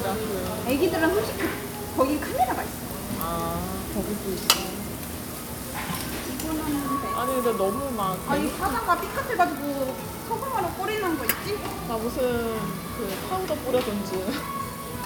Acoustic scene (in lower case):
restaurant